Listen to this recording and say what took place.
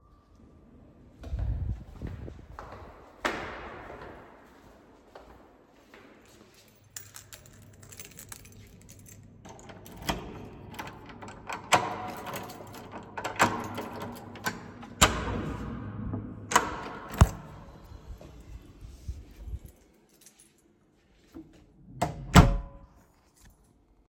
I went to my door, opened it with a key, entered home, closed a door